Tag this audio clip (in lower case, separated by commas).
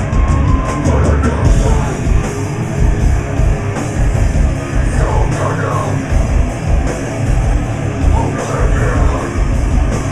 music